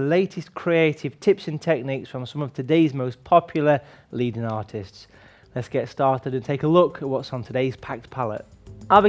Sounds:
Speech

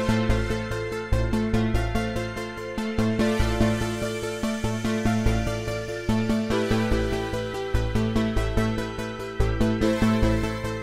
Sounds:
Music

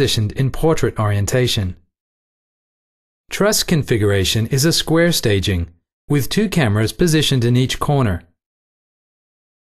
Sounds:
Speech

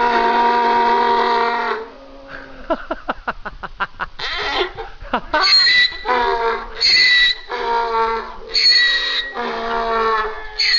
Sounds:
Animal

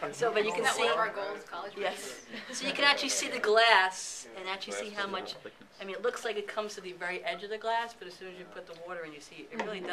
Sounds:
Speech

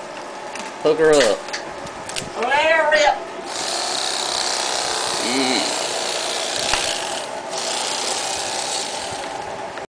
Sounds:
Speech

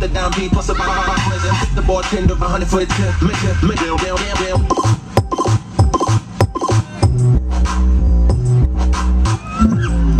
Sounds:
Music

